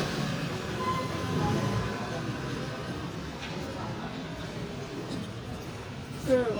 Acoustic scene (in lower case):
residential area